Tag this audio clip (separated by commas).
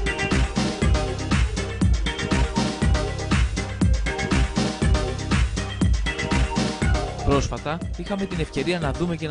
Music, Speech